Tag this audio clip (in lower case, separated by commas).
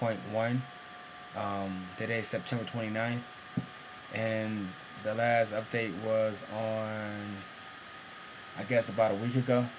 speech